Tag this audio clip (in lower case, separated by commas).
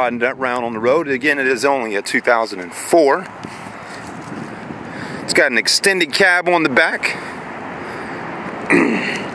speech